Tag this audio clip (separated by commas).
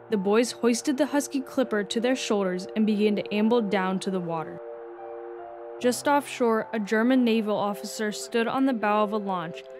Speech, Music